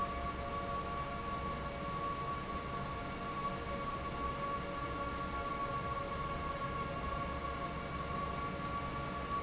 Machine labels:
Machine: fan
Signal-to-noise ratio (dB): -6 dB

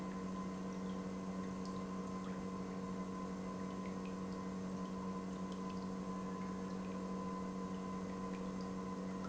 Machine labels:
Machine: pump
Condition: normal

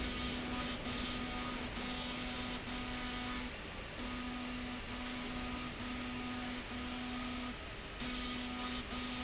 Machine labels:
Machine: slide rail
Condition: abnormal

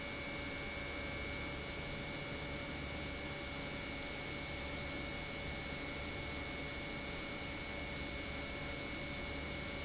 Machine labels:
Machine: pump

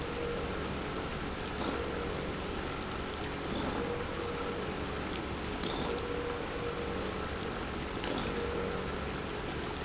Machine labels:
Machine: pump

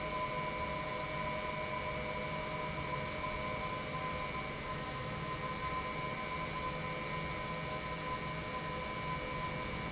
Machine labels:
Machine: pump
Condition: normal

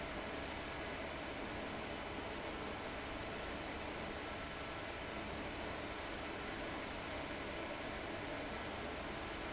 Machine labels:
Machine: fan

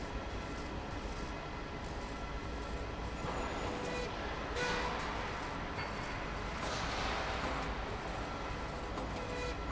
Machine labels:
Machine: slide rail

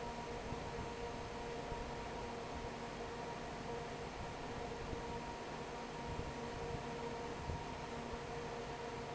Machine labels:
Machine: fan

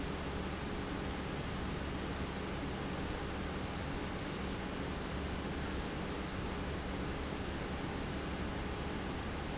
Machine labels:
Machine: pump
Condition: normal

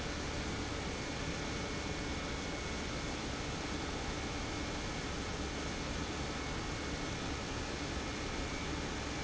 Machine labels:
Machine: pump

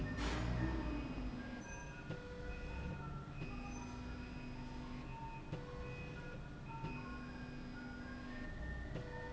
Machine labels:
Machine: slide rail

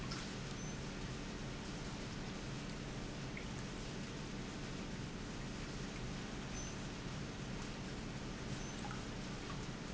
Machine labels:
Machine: pump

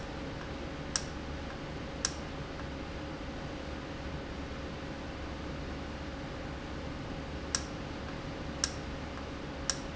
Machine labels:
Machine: valve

